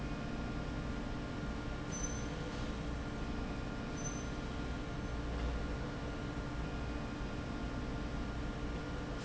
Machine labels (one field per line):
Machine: slide rail